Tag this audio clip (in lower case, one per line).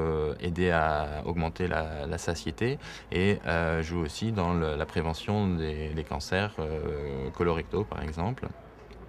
speech